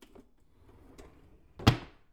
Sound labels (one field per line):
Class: drawer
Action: closing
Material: wooden